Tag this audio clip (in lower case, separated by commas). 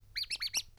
squeak